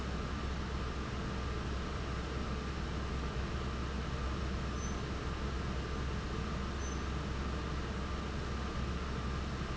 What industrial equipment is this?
fan